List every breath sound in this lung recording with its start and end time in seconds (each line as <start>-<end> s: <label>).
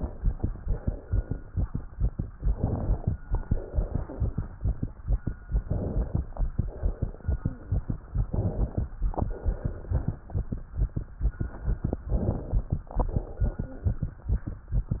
2.45-3.15 s: inhalation
3.32-4.54 s: exhalation
5.64-6.34 s: inhalation
6.58-7.80 s: exhalation
8.27-8.98 s: inhalation
9.03-10.25 s: exhalation
12.11-12.81 s: inhalation
12.94-14.16 s: exhalation